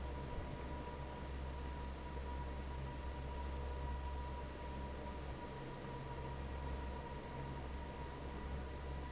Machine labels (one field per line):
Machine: fan